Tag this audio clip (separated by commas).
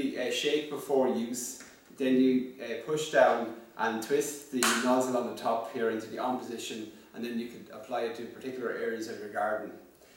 Speech